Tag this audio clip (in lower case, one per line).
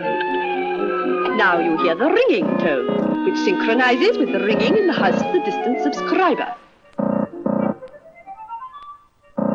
speech
telephone
busy signal
music